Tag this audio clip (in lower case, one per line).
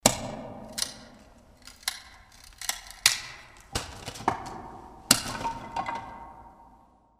wood